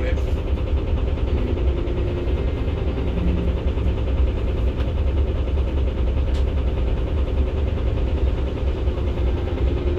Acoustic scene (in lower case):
bus